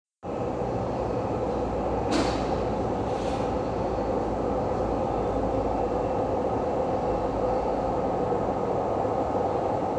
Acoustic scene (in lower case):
subway station